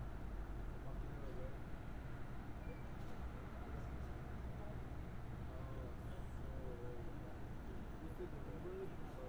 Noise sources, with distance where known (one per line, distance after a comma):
person or small group talking, far